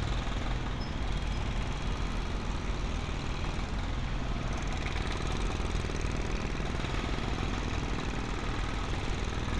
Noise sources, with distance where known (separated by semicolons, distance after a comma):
jackhammer